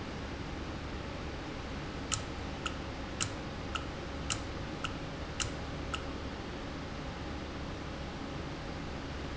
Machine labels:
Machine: valve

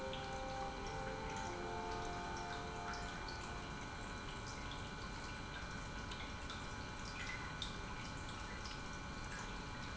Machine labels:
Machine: pump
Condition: normal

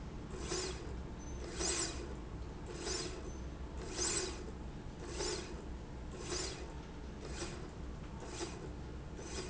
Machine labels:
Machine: slide rail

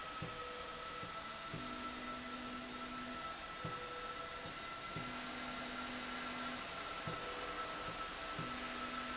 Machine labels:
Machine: slide rail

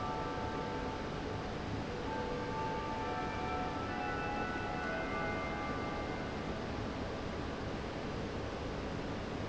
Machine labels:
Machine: fan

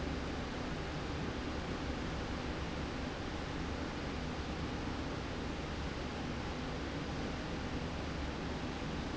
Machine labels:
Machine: slide rail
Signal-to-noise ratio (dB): -6 dB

